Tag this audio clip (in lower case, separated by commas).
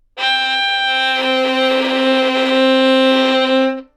musical instrument, bowed string instrument, music